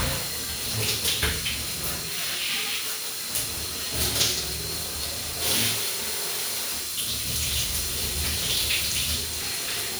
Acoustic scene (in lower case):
restroom